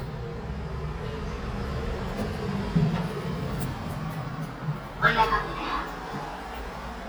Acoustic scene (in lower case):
elevator